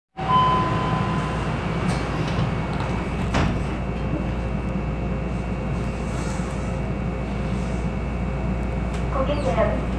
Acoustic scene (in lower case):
subway train